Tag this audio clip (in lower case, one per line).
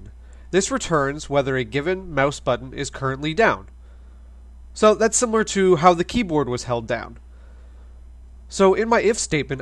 speech